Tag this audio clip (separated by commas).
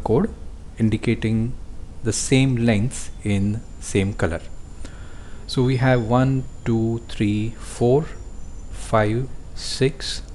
Speech